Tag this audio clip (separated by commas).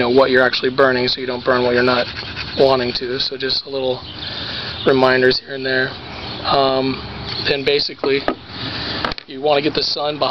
Speech